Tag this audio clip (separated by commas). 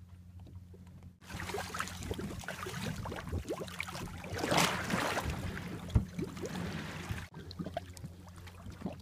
canoe, Water vehicle